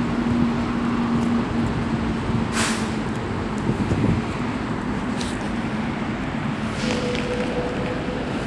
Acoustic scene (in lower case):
street